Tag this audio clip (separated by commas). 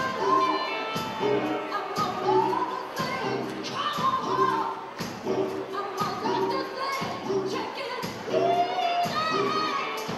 Music, inside a large room or hall, Singing